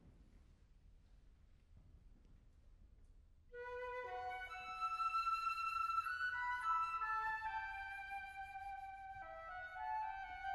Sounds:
Music, Flute

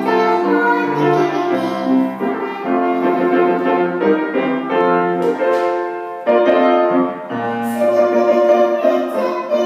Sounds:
Music, Child singing

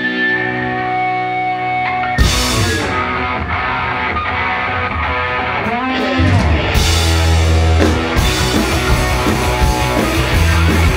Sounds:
Music

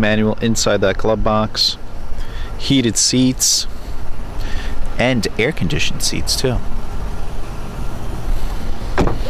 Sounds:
Door, Vehicle, Car

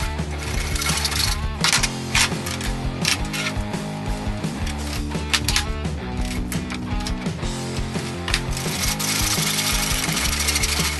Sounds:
Music

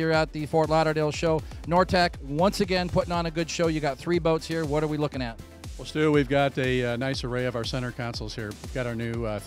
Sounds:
Speech, Music

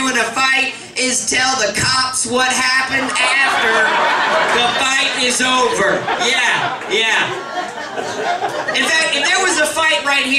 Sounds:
Speech, Snicker

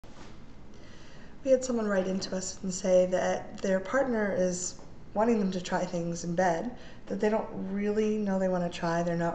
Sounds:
Speech

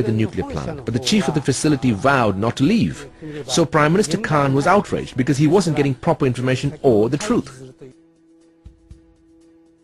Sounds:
Speech

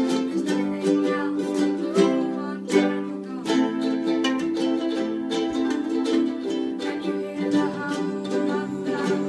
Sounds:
Music, Ukulele, Orchestra, inside a large room or hall

